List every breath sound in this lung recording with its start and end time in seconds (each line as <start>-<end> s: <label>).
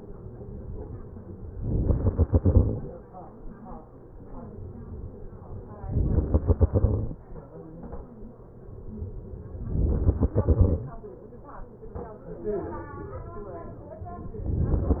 1.06-1.85 s: inhalation
1.85-3.05 s: exhalation
5.41-6.15 s: inhalation
6.15-7.50 s: exhalation
8.88-9.98 s: inhalation
9.98-11.10 s: exhalation